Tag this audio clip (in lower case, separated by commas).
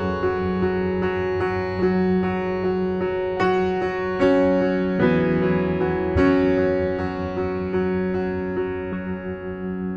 electric piano, music